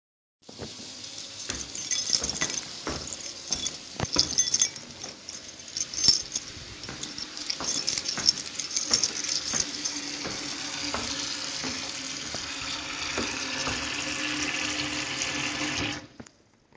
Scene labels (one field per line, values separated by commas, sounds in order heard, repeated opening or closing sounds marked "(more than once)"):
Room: kitchen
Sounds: running water, footsteps, keys